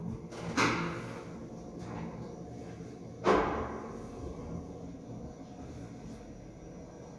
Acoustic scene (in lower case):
elevator